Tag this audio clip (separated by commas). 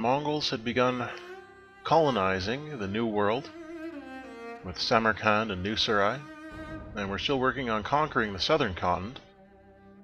Cello